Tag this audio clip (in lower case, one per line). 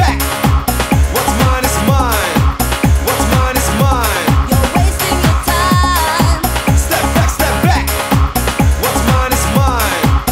music
dance music